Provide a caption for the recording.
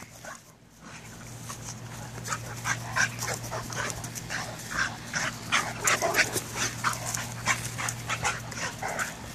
A dog panting back and forth